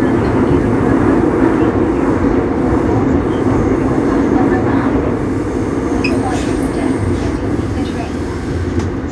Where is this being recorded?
on a subway train